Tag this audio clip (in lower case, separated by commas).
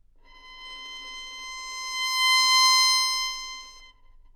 musical instrument, bowed string instrument, music